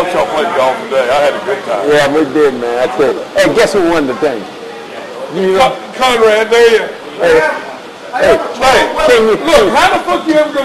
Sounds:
Speech

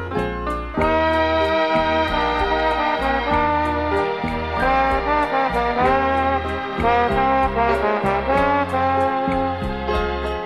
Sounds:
Music

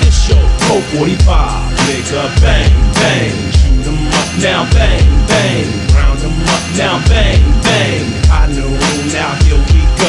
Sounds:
Music

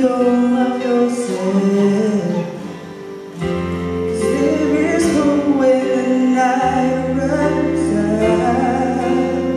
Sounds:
Lullaby, Music

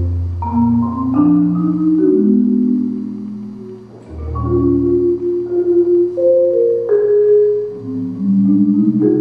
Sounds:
Musical instrument, Percussion, Music, xylophone

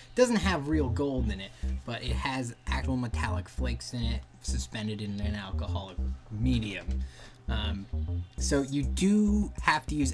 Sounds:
Speech, Music

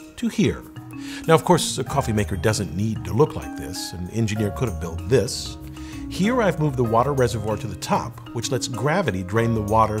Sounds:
Speech, Music

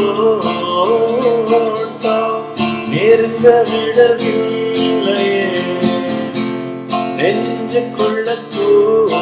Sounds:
Acoustic guitar, Guitar, Musical instrument, Music, Plucked string instrument

